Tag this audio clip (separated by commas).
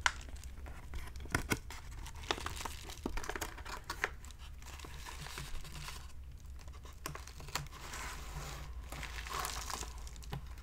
ripping paper